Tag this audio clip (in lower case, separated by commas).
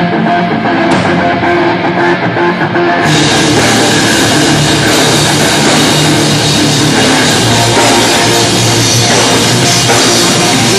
music, rock music, heavy metal, punk rock